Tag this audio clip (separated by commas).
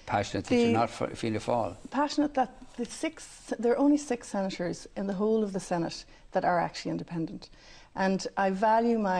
woman speaking, Speech